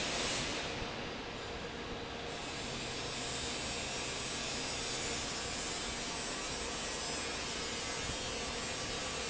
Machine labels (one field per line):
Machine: fan